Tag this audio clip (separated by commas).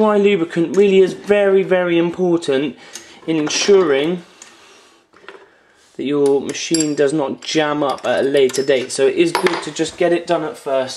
Speech